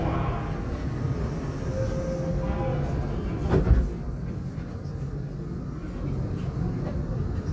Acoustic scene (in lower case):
subway train